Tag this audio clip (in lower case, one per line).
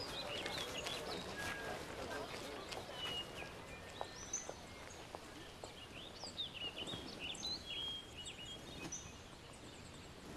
outside, rural or natural